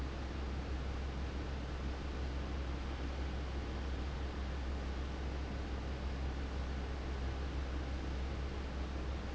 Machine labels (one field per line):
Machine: fan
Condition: abnormal